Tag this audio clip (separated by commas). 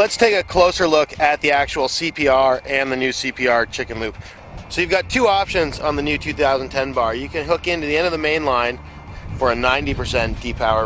Speech, Music